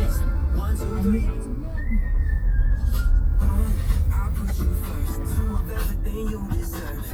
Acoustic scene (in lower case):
car